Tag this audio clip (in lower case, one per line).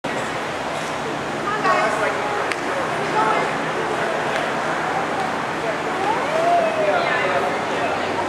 speech
vehicle